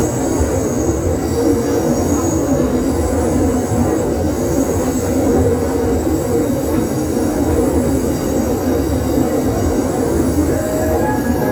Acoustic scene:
subway train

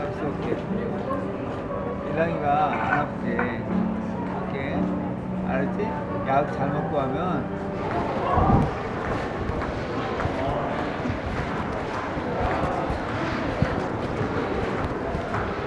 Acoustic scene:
crowded indoor space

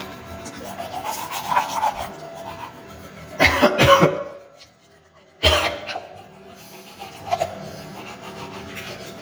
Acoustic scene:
restroom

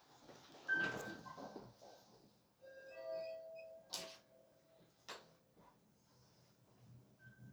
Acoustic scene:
elevator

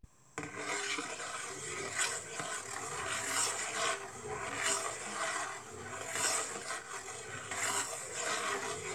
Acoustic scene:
kitchen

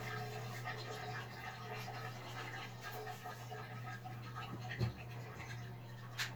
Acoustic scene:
restroom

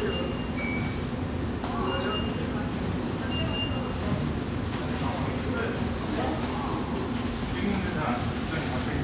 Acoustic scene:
subway station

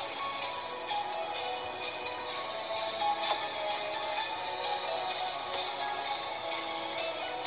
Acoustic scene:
car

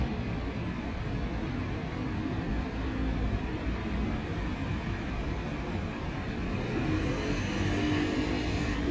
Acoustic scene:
street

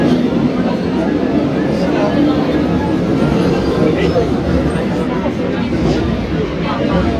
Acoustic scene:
subway train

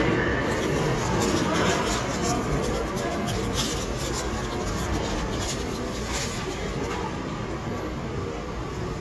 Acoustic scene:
subway station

